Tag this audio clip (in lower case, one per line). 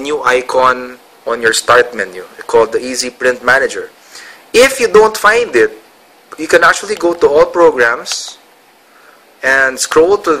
speech